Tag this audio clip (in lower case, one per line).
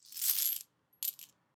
coin (dropping)
domestic sounds